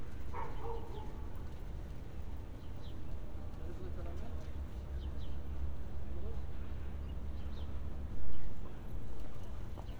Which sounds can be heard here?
dog barking or whining